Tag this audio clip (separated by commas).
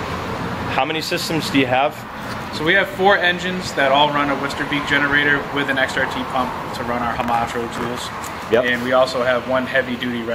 Speech